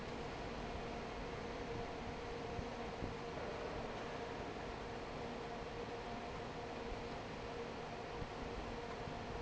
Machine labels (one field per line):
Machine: fan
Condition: normal